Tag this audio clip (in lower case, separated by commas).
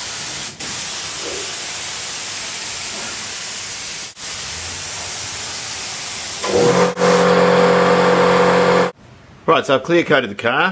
speech, vehicle